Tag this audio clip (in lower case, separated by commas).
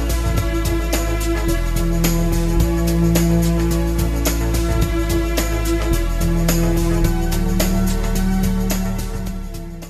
music